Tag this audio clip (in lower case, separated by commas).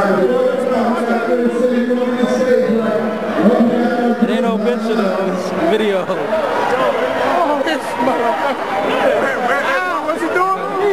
speech